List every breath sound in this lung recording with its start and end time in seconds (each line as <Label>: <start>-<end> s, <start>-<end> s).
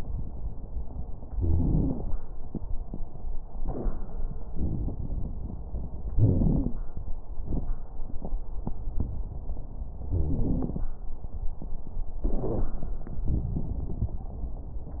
Inhalation: 4.51-5.74 s
Exhalation: 6.20-6.79 s
Wheeze: 1.32-2.02 s
Crackles: 4.51-5.74 s, 6.20-6.79 s